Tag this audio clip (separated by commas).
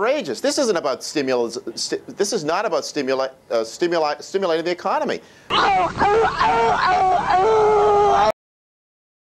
Speech